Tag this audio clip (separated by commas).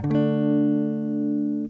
Electric guitar, Plucked string instrument, Guitar, Musical instrument, Music, Strum